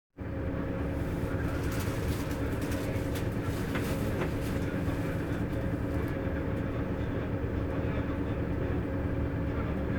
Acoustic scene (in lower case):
bus